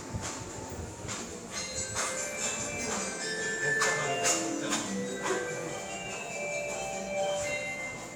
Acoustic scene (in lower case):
subway station